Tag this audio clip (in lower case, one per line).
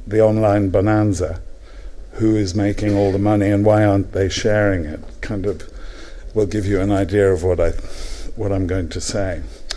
monologue
man speaking
speech